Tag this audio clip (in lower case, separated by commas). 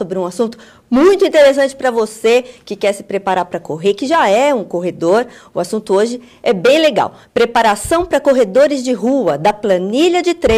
speech, inside a small room